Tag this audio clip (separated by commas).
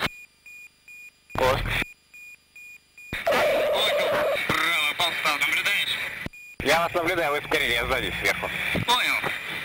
Speech